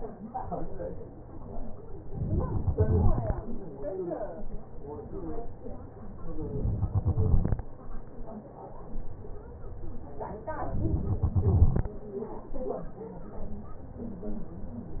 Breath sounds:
Inhalation: 2.06-2.73 s
Exhalation: 2.73-3.92 s, 6.66-7.80 s, 11.02-11.92 s

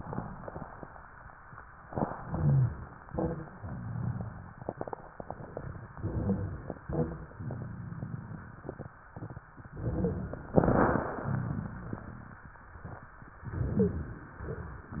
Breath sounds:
Inhalation: 2.20-3.00 s, 5.98-6.78 s, 9.73-10.53 s, 13.49-14.29 s
Exhalation: 3.06-3.59 s, 6.81-7.34 s
Wheeze: 2.20-3.00 s, 13.78-14.06 s
Rhonchi: 3.06-3.59 s, 6.81-7.34 s

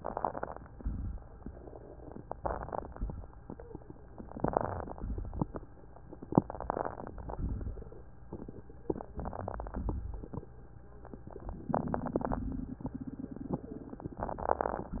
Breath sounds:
Inhalation: 0.00-0.78 s, 2.12-2.90 s, 4.26-4.97 s, 6.30-7.29 s, 8.86-9.81 s, 11.00-11.70 s, 13.53-14.23 s
Exhalation: 0.77-1.55 s, 2.97-3.75 s, 4.99-5.74 s, 7.30-8.00 s, 9.82-10.77 s, 11.70-12.40 s, 13.52-13.96 s, 14.22-15.00 s
Crackles: 0.79-1.56 s, 2.95-3.76 s, 4.97-5.75 s, 7.29-8.00 s, 9.81-10.76 s

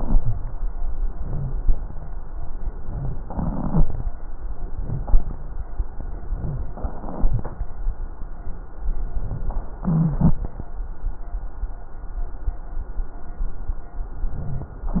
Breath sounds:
Inhalation: 3.30-4.06 s, 4.73-5.41 s, 9.87-10.42 s, 14.19-14.74 s
Wheeze: 9.87-10.42 s
Rhonchi: 0.11-0.44 s, 3.30-4.06 s, 4.76-5.08 s

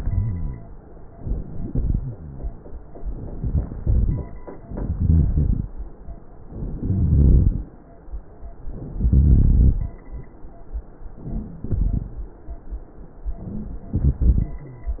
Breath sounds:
Inhalation: 1.08-1.98 s, 3.40-4.23 s, 4.76-5.69 s, 6.72-7.65 s, 8.92-9.75 s
Rhonchi: 0.00-0.89 s, 2.01-2.85 s, 6.72-7.65 s, 8.92-9.75 s
Crackles: 4.72-5.66 s

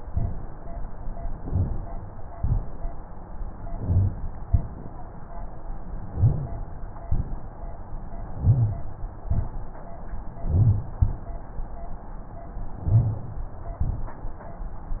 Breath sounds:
Inhalation: 1.25-1.97 s, 3.63-4.35 s, 6.10-6.61 s, 8.34-8.89 s, 10.45-10.94 s, 12.88-13.38 s
Exhalation: 2.32-3.04 s, 4.43-5.15 s, 7.03-7.83 s, 9.23-9.97 s, 10.98-11.47 s

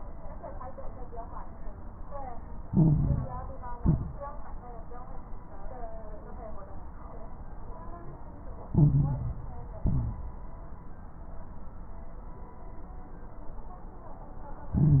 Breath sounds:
Inhalation: 2.64-3.57 s, 8.72-9.65 s, 14.71-15.00 s
Exhalation: 3.78-4.22 s, 9.80-10.25 s
Crackles: 2.64-3.57 s, 3.78-4.22 s, 8.72-9.65 s, 9.80-10.25 s, 14.71-15.00 s

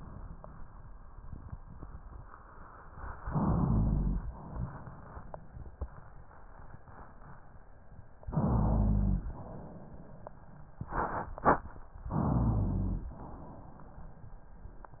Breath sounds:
Inhalation: 3.25-4.26 s, 8.27-9.29 s, 12.11-13.12 s
Exhalation: 4.28-6.21 s, 9.27-10.53 s, 13.10-14.43 s
Rhonchi: 3.25-4.34 s, 8.32-9.36 s, 12.11-13.12 s

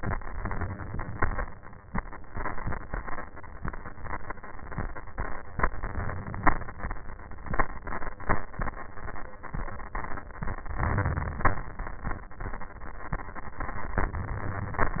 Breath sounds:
Inhalation: 10.74-11.48 s, 13.99-15.00 s
Exhalation: 11.48-12.22 s

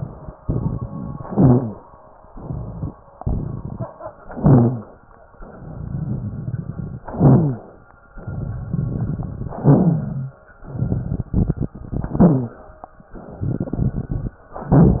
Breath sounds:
Inhalation: 1.22-1.82 s, 4.33-4.93 s, 7.12-7.72 s, 9.62-10.34 s, 12.12-12.68 s
Exhalation: 0.36-1.18 s, 2.24-2.94 s, 5.45-6.98 s, 8.25-9.53 s, 10.62-11.84 s, 13.21-14.42 s
Wheeze: 1.22-1.82 s, 4.33-4.93 s, 7.12-7.72 s, 9.62-10.34 s, 12.12-12.68 s
Crackles: 0.36-1.18 s, 2.24-2.94 s, 3.21-3.91 s, 5.45-6.98 s, 8.25-9.53 s, 10.62-11.84 s, 13.21-14.42 s

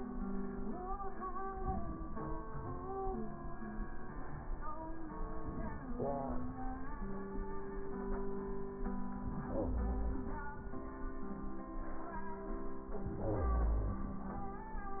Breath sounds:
Inhalation: 13.04-14.54 s

